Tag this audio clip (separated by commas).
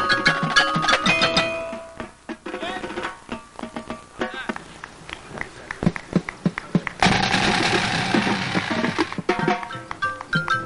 Speech, Music, outside, rural or natural